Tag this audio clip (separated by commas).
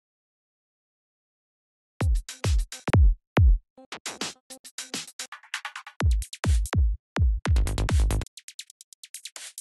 Trance music, Drum machine